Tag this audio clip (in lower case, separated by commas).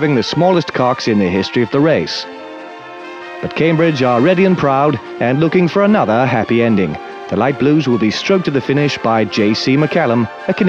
speech, music